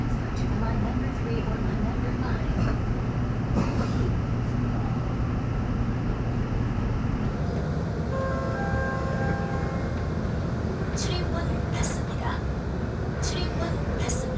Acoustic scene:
subway train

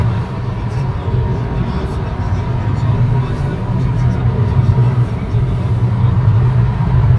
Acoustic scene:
car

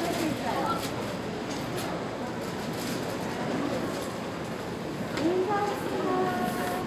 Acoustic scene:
crowded indoor space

